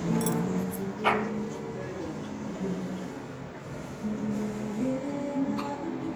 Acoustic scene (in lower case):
restaurant